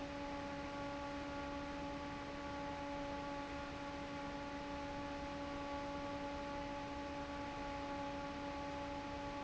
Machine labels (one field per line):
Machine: fan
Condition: normal